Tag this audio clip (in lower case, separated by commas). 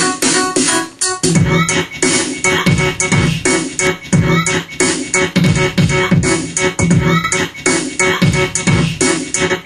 music, sound effect